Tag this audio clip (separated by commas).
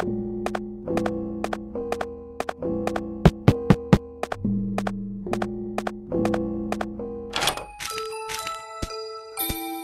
Music, inside a small room